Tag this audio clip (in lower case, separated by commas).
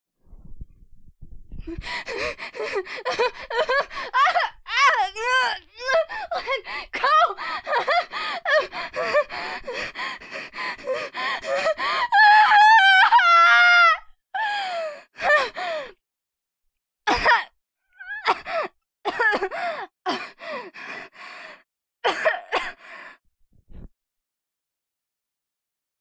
breathing, respiratory sounds, gasp